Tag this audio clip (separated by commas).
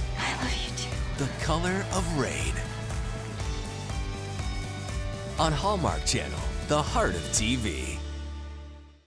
Music, Speech